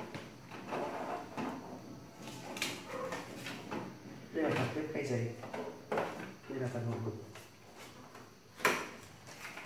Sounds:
speech

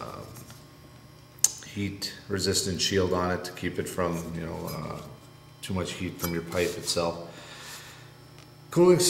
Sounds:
speech

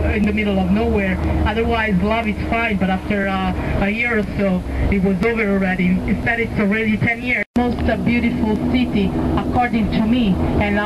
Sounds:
speech

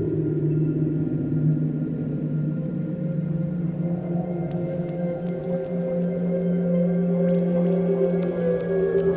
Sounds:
music
ambient music

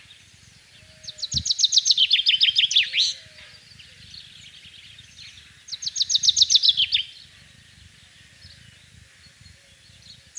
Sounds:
mynah bird singing

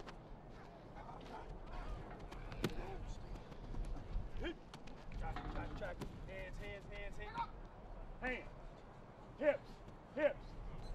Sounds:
speech

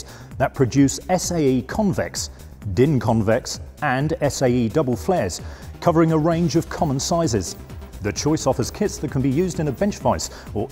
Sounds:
music
speech

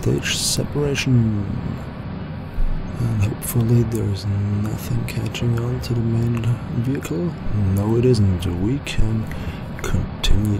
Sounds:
speech

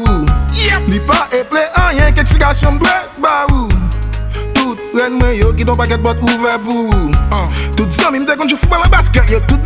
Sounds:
rhythm and blues
music

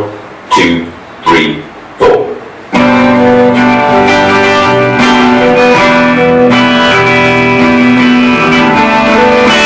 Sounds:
speech
musical instrument
music
guitar

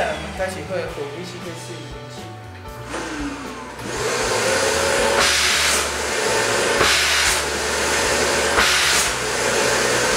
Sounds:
vacuum cleaner cleaning floors

